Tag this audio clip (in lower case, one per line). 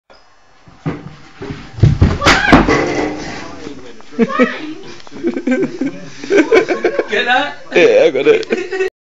speech
inside a large room or hall